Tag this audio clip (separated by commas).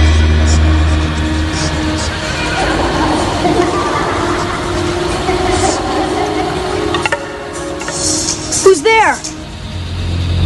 Music, Speech